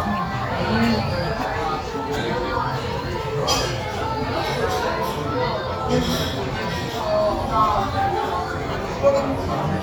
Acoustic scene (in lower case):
restaurant